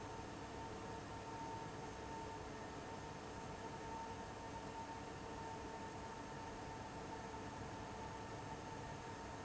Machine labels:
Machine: fan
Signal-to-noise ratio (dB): 6 dB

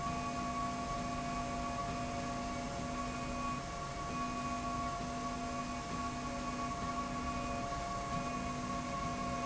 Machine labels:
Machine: slide rail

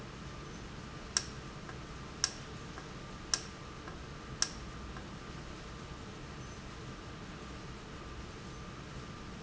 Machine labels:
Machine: valve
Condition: normal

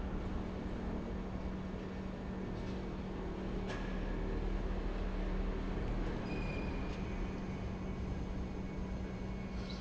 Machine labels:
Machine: pump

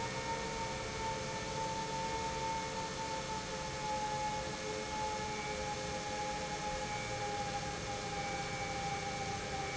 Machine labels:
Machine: pump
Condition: normal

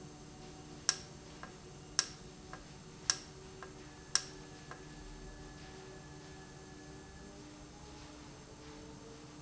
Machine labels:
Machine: valve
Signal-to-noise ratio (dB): 6 dB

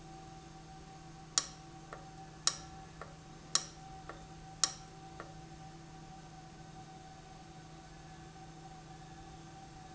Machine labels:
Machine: valve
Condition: abnormal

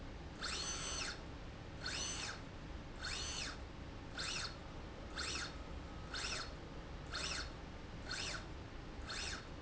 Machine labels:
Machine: slide rail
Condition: normal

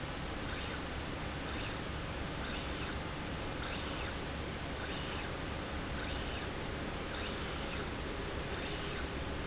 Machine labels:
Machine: slide rail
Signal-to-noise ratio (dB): -6 dB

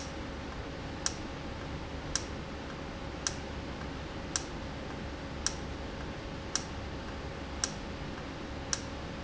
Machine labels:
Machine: valve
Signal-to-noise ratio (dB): -6 dB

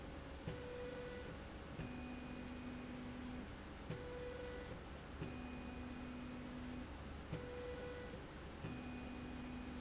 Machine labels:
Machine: slide rail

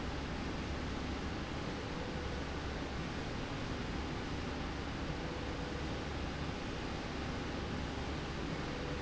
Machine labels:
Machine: slide rail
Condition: normal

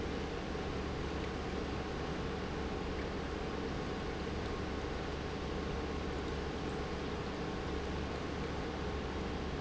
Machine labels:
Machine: pump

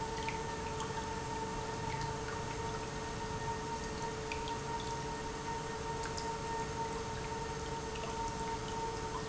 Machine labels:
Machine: pump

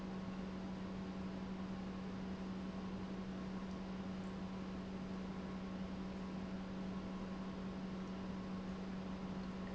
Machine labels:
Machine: pump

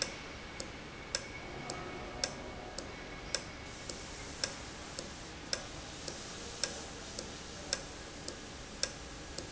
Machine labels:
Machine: valve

